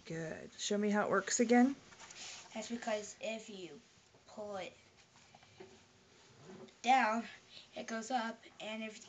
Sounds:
Speech

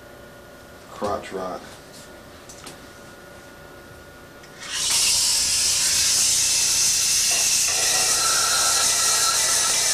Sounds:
Speech

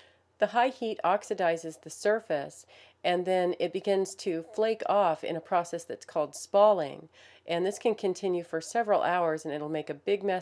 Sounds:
Speech

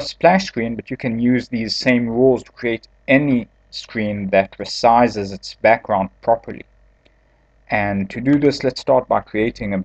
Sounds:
Speech

